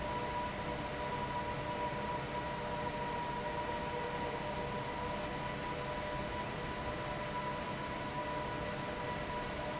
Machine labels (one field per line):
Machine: fan